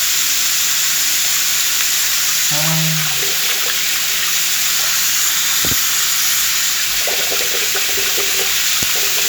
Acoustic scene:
restroom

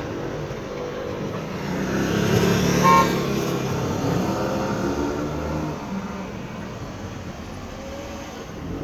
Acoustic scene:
street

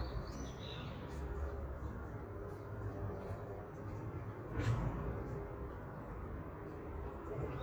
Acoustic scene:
park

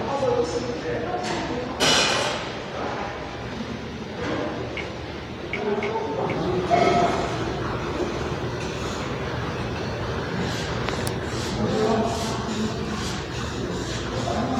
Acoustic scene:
restaurant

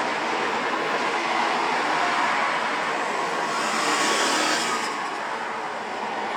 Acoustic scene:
street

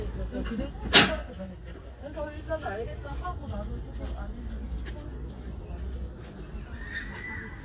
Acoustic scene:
residential area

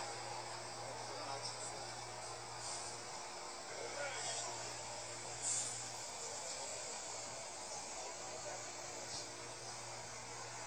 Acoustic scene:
street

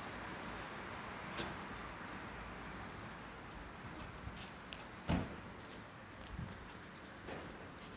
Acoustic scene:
street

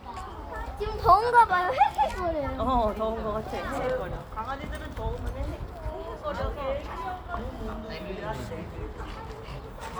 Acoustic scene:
park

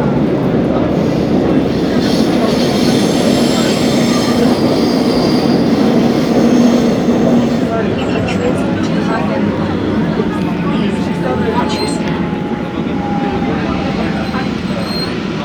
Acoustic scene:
subway train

